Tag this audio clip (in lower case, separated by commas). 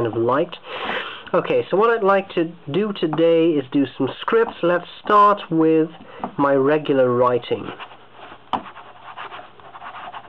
writing